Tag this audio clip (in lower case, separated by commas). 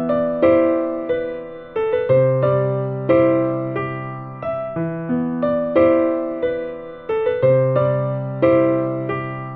music, tender music